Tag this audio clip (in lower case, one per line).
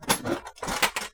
tools